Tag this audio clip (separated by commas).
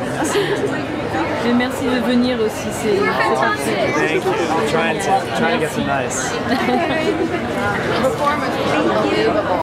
Speech